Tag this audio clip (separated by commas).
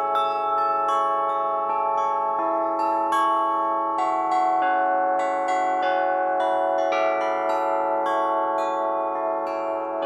Bell